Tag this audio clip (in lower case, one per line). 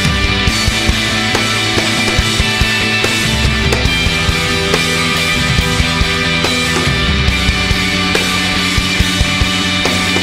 music